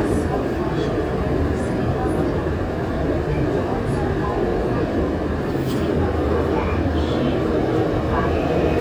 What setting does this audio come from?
subway train